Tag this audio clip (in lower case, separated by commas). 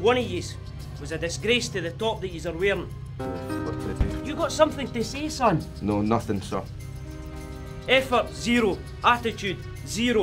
music, speech